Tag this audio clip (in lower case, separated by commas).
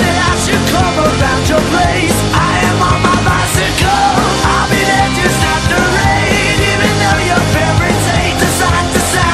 music